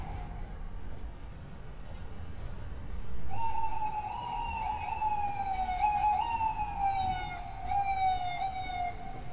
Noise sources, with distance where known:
siren, near

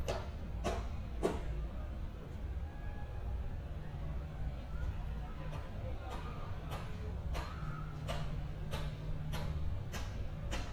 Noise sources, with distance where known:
unidentified human voice

